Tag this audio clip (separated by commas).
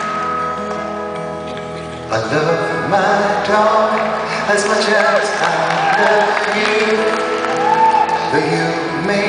Music